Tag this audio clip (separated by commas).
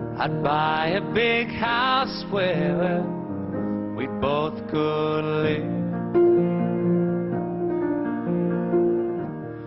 Music, Male singing